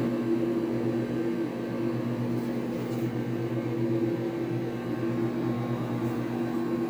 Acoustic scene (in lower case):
kitchen